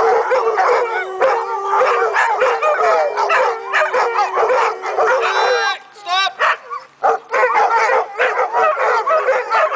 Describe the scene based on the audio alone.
Several dogs are barking and howling rapidly and a man yells over them